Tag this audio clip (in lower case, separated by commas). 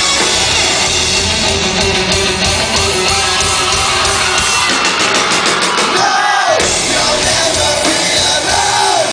guitar, musical instrument, bass guitar, strum, plucked string instrument, music